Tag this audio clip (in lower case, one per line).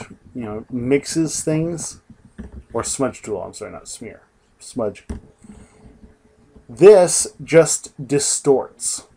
speech